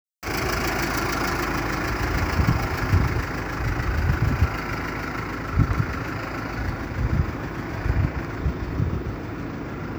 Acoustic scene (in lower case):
residential area